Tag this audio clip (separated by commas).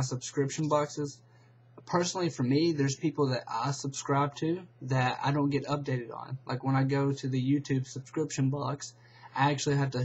Speech